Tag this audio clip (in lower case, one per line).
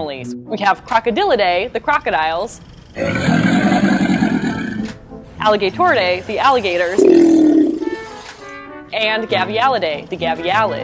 crocodiles hissing